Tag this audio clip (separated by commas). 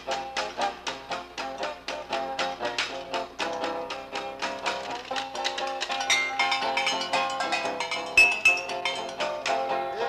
playing washboard